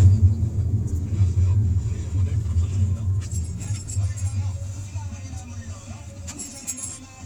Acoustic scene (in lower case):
car